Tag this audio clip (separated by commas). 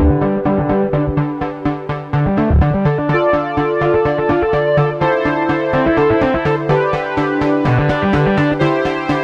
Music